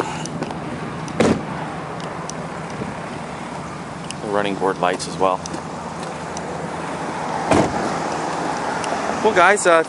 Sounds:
Wind noise (microphone), Wind

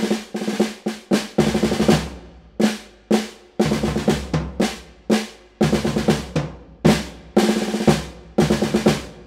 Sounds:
Music, Drum, Drum roll

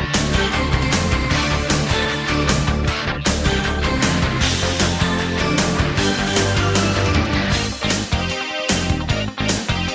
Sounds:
Music

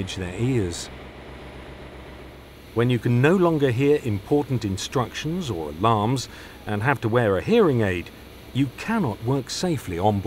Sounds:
White noise, Speech

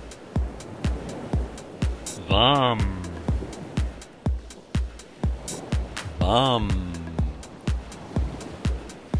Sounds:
Mantra, Music

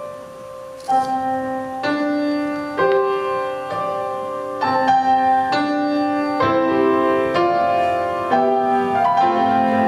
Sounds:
Music

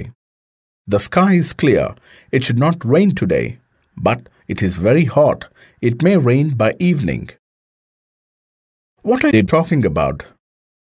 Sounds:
Speech

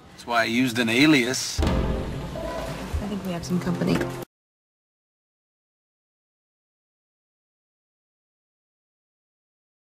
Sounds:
Speech, Music

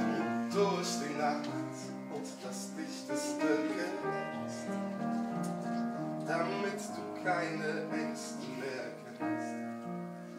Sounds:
Music

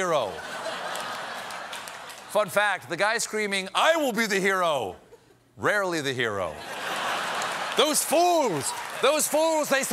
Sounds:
people booing

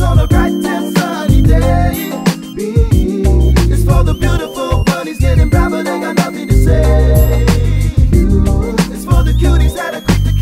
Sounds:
Rhythm and blues, Music

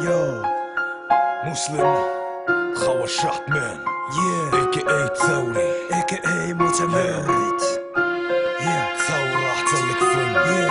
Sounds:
Music

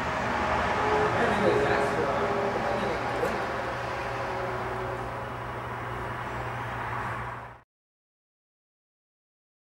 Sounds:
Speech

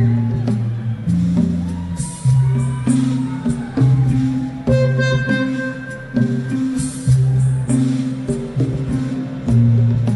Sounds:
Music

